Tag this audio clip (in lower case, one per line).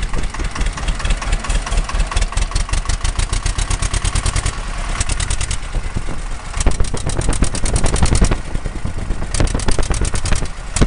vehicle
heavy engine (low frequency)